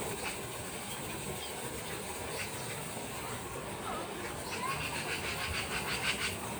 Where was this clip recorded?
in a park